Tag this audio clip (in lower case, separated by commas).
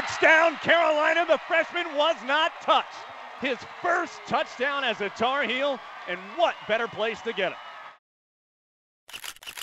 speech